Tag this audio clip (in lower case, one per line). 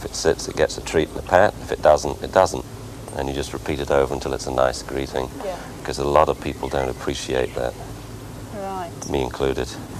speech